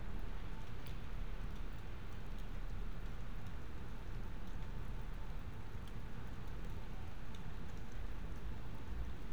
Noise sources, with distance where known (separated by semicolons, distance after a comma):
background noise